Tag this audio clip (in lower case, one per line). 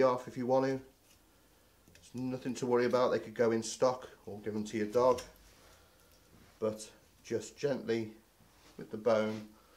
speech
inside a small room